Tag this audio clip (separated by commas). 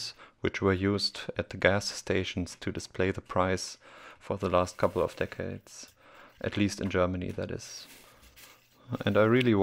Speech